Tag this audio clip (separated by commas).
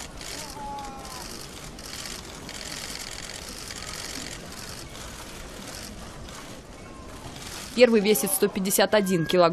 people battle cry